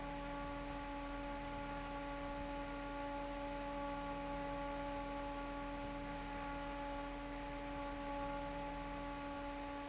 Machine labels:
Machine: fan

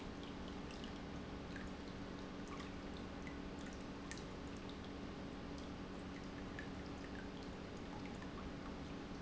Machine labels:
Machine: pump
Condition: normal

